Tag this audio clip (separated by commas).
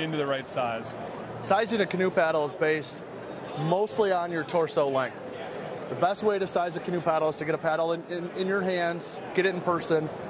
Speech